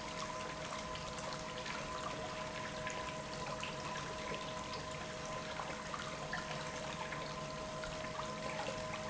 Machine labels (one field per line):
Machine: pump